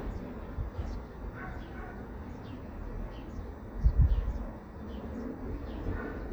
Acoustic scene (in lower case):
residential area